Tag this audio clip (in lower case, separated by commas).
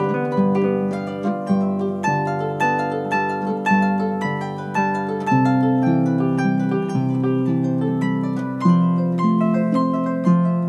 music, plucked string instrument, musical instrument